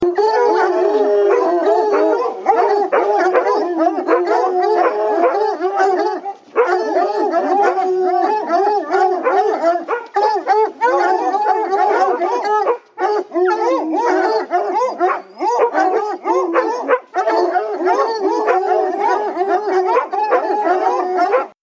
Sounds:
pets, Animal, Dog

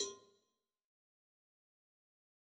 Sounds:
Bell, Cowbell

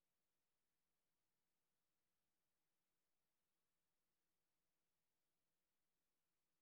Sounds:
Mechanisms, Engine

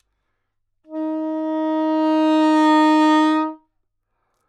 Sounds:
Music, Musical instrument, Wind instrument

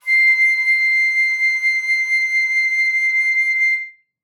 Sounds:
Wind instrument, Musical instrument, Music

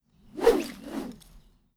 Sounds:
swish

